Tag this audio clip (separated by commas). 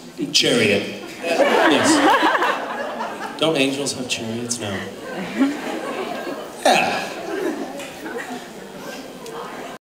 Speech